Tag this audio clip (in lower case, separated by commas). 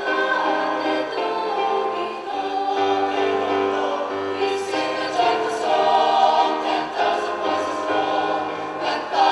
a capella, music, choir, singing